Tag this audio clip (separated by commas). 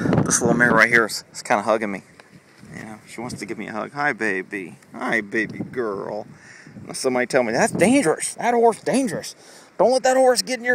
horse neighing